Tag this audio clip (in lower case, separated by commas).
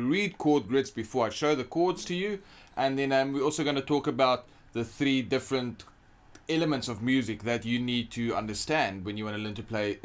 speech